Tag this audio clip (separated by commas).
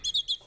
bird song, Chirp, Bird, Wild animals, Animal